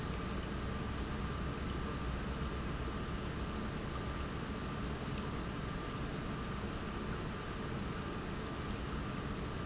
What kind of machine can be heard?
pump